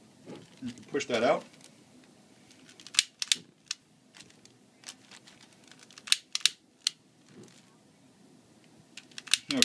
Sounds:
speech

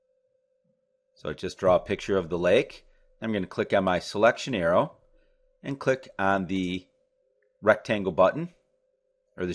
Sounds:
speech

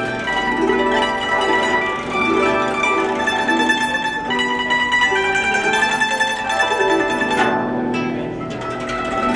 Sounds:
playing zither

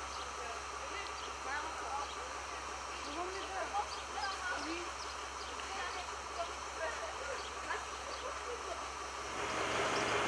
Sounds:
speech

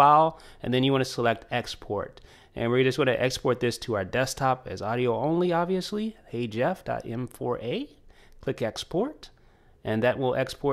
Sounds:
speech
inside a small room

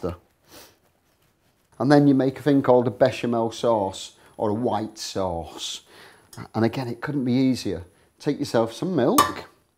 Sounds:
speech

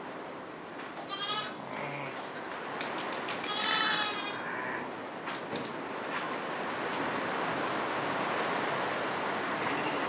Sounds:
livestock

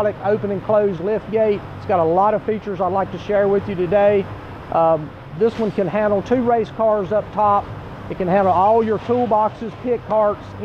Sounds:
speech

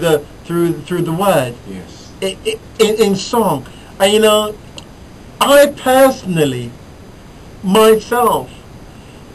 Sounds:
speech

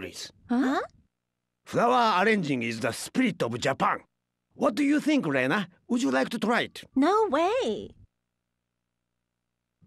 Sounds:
speech

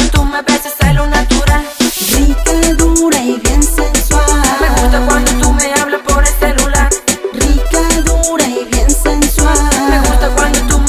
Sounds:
music

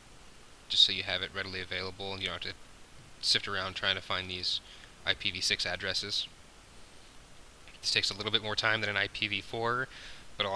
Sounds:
speech

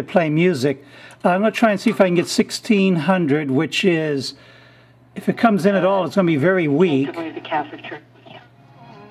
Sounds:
speech
radio
music

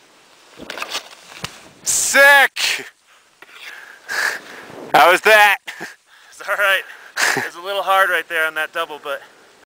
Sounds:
speech

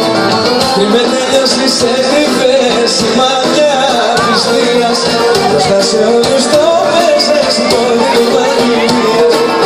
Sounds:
music
speech
dance music

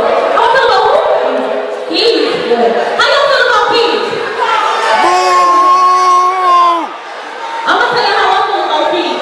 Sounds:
speech
inside a large room or hall

